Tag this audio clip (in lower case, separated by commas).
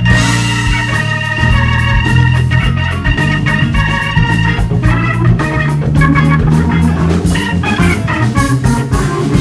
playing hammond organ